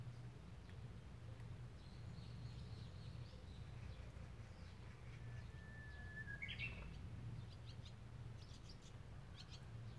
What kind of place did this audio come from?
park